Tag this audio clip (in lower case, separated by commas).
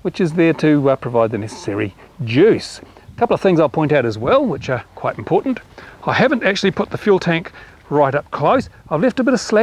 speech